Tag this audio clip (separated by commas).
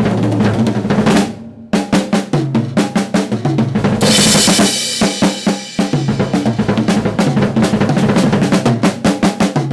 Drum, Percussion, Bass drum, Drum roll, Drum kit, Snare drum, Rimshot